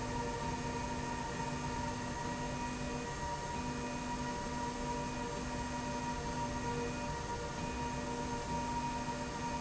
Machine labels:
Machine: slide rail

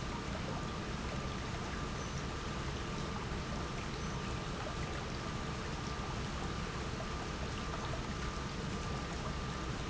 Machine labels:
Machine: pump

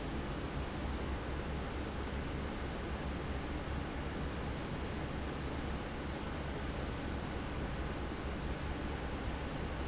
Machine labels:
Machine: fan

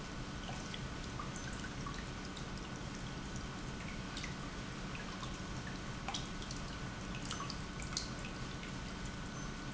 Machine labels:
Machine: pump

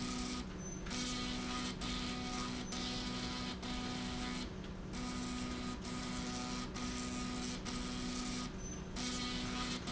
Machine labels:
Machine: slide rail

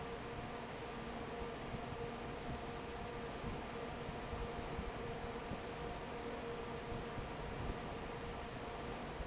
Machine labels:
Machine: fan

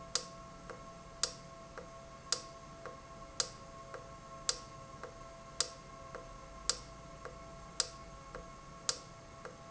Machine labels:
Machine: valve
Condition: normal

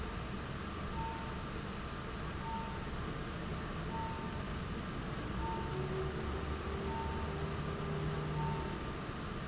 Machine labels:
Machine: fan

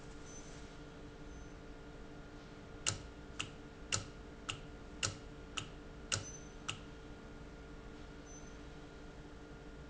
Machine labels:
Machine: valve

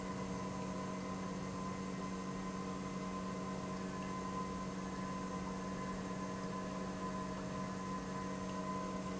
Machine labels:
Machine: pump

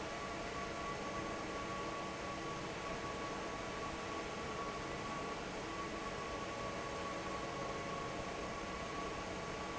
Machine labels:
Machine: fan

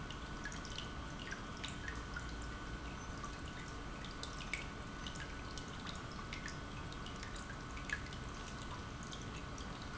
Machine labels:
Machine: pump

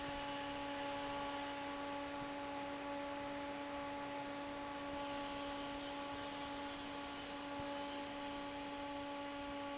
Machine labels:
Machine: fan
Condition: normal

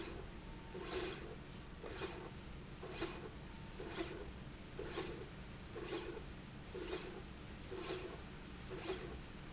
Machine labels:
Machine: slide rail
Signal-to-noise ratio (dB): 6 dB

